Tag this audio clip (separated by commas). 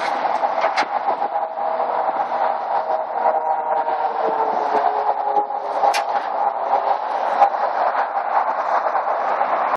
Vehicle